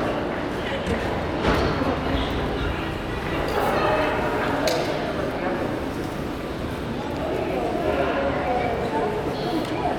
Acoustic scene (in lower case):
crowded indoor space